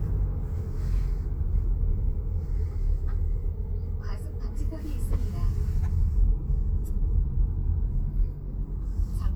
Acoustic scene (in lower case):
car